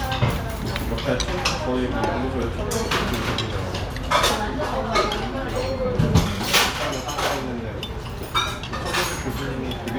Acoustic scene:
restaurant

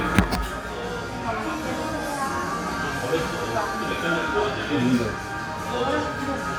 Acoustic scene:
crowded indoor space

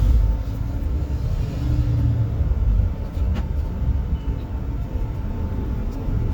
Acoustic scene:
bus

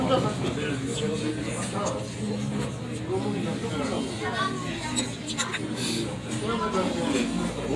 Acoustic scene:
crowded indoor space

